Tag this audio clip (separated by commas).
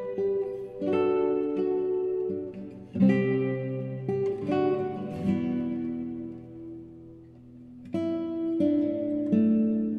Plucked string instrument, Acoustic guitar, Guitar, Music, Musical instrument